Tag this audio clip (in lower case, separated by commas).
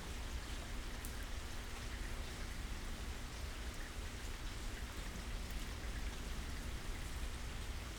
rain, water